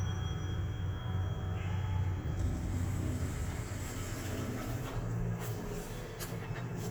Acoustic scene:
elevator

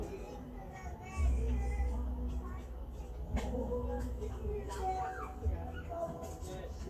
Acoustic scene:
park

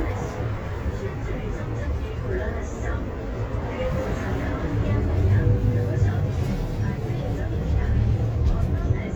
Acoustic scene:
bus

